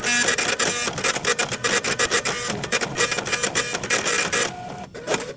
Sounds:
Printer, Mechanisms

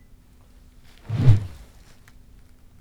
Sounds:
swoosh

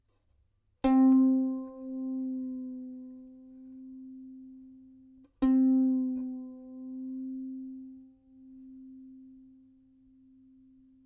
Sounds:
Musical instrument, Music, Bowed string instrument

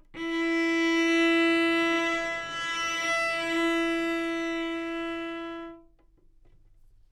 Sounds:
Music, Musical instrument, Bowed string instrument

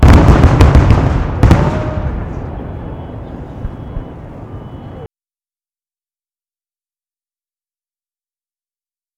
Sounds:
Explosion, Fireworks

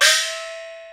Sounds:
Gong, Music, Musical instrument, Percussion

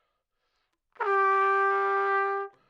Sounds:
Brass instrument, Trumpet, Musical instrument, Music

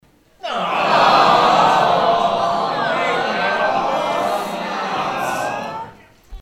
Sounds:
Human group actions, Crowd

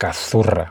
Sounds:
man speaking, Human voice, Speech

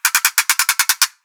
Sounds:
Ratchet, Mechanisms

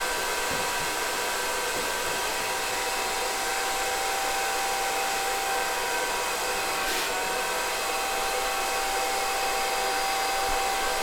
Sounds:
home sounds

